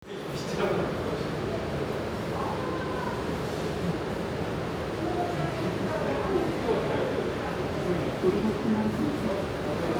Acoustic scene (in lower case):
subway station